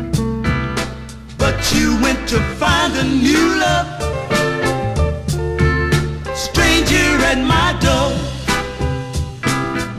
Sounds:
music

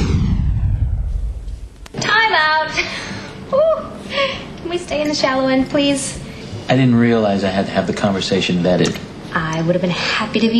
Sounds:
television, music, speech

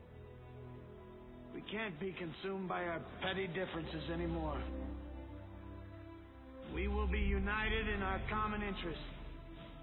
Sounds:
speech, music, monologue, male speech

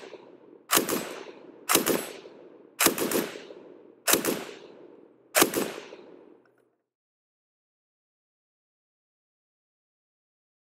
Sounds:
machine gun shooting

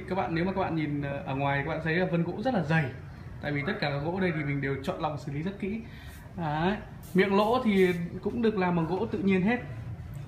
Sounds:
speech

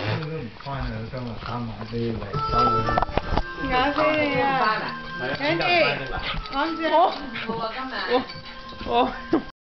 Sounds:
speech, music

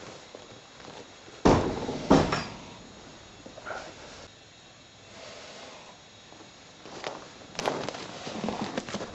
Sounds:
animal

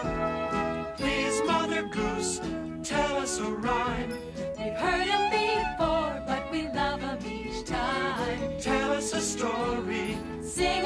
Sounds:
music

